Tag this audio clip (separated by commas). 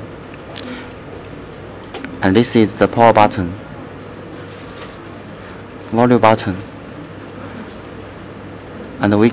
Speech